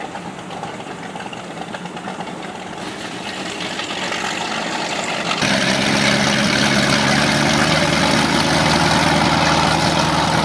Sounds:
Motorboat, Boat, Vehicle

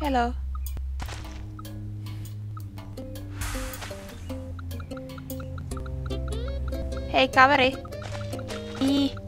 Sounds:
Music, Speech

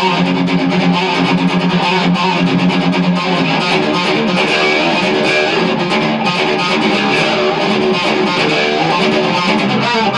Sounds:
Plucked string instrument, Electric guitar, Strum, Musical instrument, Music, Guitar, Acoustic guitar

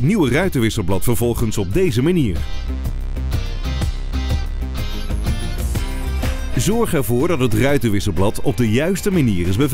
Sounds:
Music, Speech

